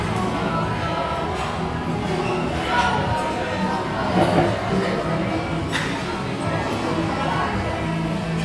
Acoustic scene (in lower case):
restaurant